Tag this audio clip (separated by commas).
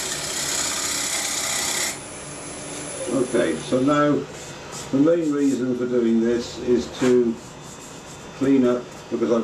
Power tool, Wood, Tools, Rub